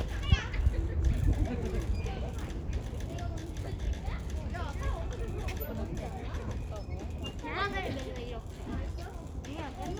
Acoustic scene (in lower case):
residential area